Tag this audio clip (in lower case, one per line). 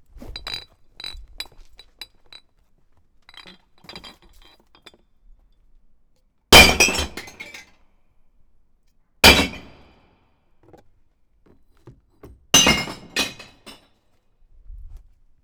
shatter
glass